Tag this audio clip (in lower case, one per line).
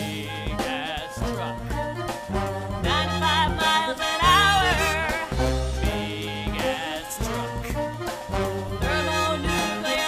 music